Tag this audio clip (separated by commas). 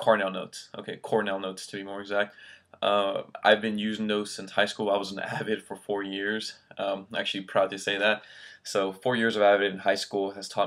Speech